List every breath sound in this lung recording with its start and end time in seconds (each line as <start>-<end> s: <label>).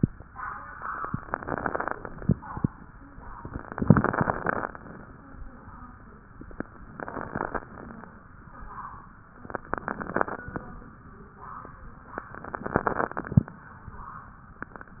1.23-1.95 s: inhalation
1.23-1.95 s: crackles
3.38-4.71 s: inhalation
3.38-4.71 s: crackles
4.77-5.44 s: exhalation
6.94-7.61 s: inhalation
6.94-7.61 s: crackles
7.65-8.32 s: exhalation
9.46-10.43 s: inhalation
9.46-10.43 s: crackles
12.32-13.38 s: inhalation
12.32-13.38 s: crackles